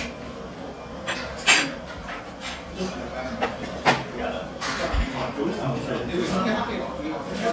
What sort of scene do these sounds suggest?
restaurant